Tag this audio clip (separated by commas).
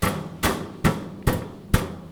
Tools